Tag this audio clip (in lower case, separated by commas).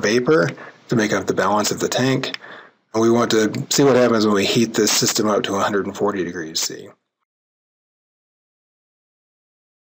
speech